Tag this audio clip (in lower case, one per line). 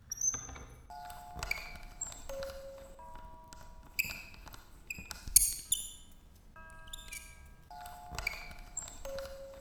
squeak